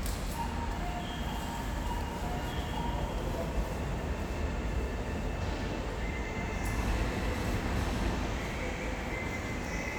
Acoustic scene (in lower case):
subway station